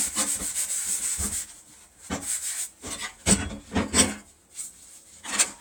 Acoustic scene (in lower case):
kitchen